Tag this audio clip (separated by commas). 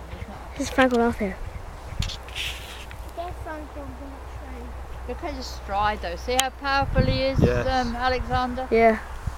Speech